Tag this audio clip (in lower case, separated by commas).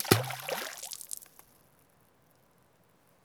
water, splash, liquid